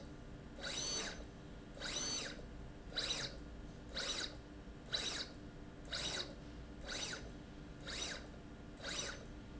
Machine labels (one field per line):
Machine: slide rail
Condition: abnormal